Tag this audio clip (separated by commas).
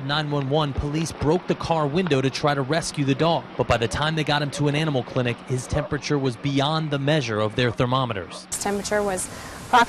Speech, Yip